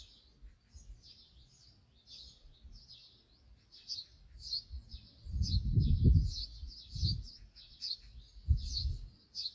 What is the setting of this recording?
park